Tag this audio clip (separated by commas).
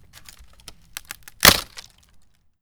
Crack